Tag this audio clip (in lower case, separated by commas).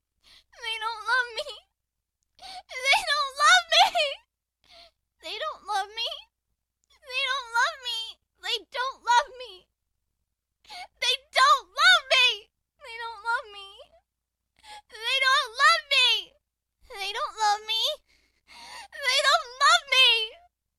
sobbing, human voice